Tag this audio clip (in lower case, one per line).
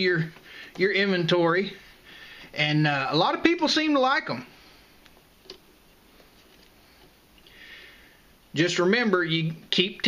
inside a small room
speech